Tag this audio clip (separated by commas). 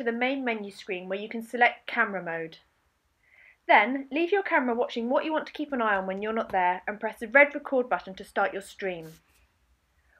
Speech